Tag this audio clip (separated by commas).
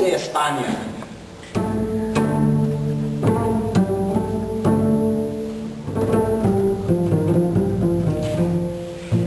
playing double bass